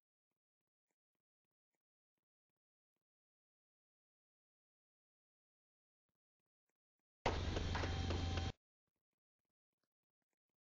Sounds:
Silence

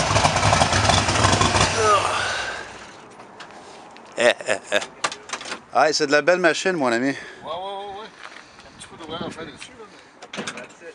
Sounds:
Vehicle, Car

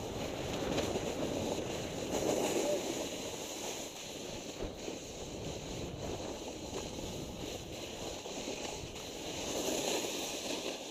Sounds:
Speech

